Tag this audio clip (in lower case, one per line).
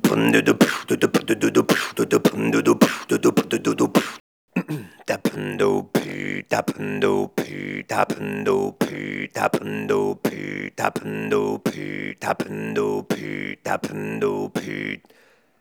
human voice
singing